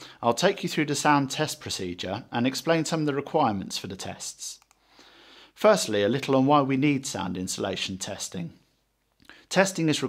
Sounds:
Speech

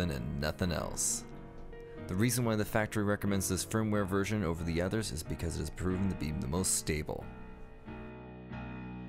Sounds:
Music, Speech

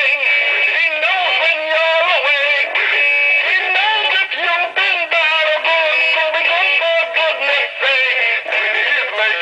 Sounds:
Speech

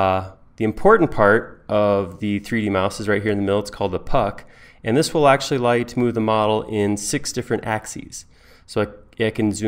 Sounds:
Speech

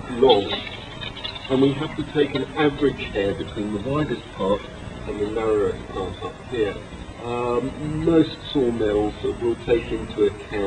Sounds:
Speech

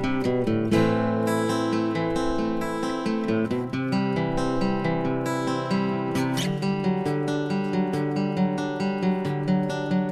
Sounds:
Music

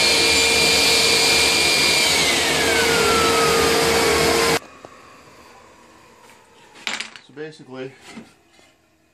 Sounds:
Tools, Power tool, Speech, Wood

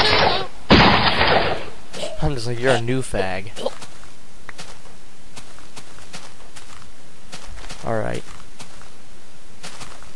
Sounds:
Run, Speech

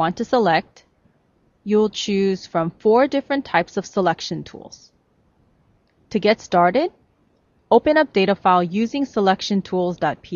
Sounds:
Speech

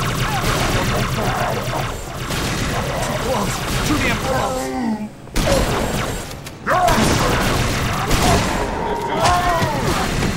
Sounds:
Speech

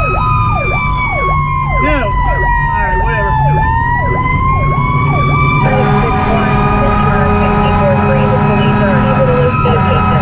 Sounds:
fire truck siren

